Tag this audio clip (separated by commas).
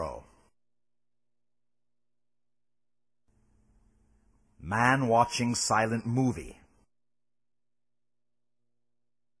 Speech